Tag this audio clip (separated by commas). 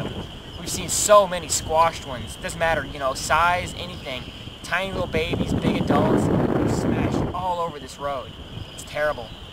Speech